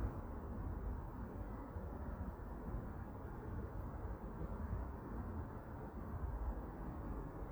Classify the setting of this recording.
park